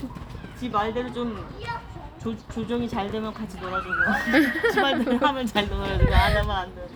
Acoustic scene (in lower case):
park